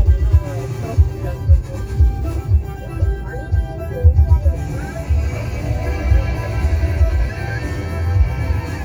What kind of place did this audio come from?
car